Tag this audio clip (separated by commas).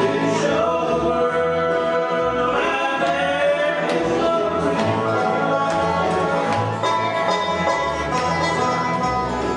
Music, Country